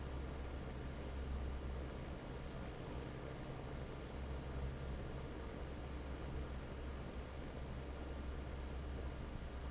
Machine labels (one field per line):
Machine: fan